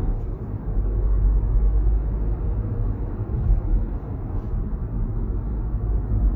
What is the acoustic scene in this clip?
car